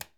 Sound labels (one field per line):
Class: switch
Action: being turned off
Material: plastic